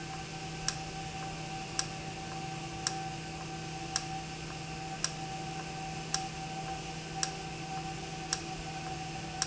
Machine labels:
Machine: valve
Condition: normal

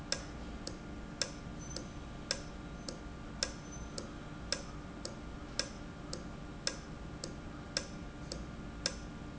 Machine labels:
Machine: valve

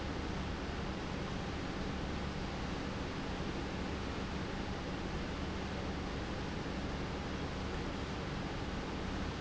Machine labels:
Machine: pump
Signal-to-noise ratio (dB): -6 dB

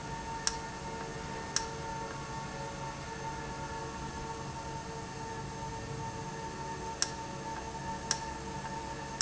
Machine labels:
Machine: valve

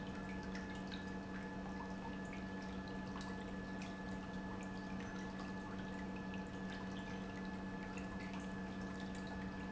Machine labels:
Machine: pump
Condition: normal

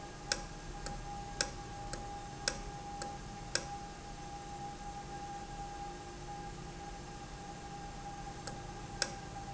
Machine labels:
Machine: valve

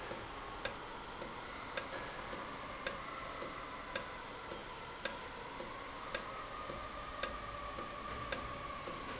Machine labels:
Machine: valve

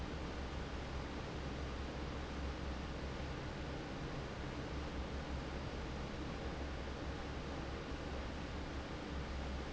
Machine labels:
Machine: fan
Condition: normal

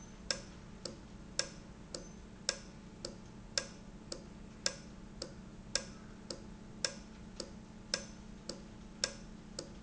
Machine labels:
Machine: valve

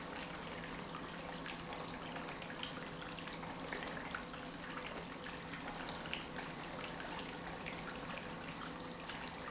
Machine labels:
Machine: pump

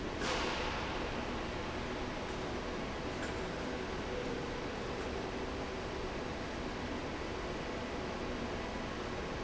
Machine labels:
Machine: fan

